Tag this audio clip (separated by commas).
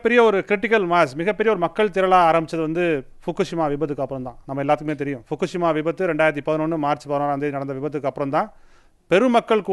Speech, Male speech, monologue